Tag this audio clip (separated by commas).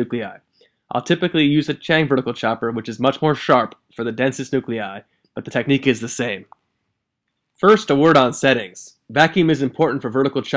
Speech